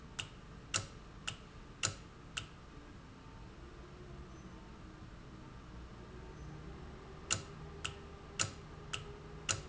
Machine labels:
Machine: valve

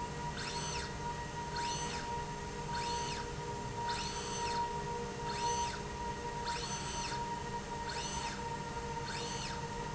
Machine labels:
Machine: slide rail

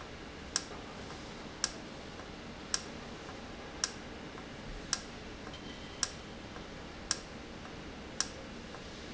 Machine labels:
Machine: valve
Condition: normal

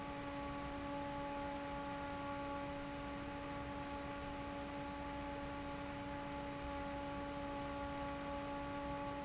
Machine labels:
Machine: fan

